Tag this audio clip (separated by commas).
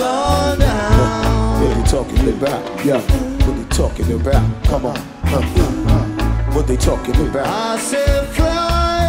Music